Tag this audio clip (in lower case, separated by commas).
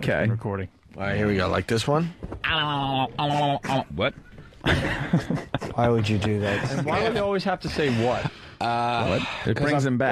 speech